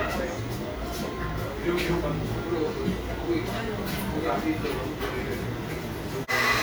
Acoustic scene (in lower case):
cafe